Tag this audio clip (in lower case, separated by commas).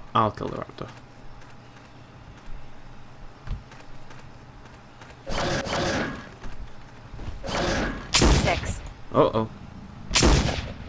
speech, fusillade